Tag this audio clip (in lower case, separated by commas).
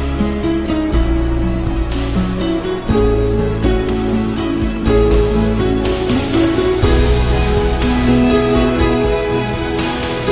music